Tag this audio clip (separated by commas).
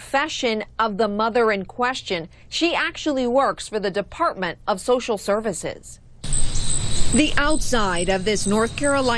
Speech